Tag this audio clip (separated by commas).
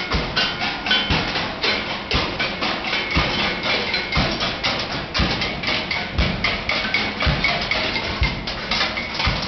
Percussion, Music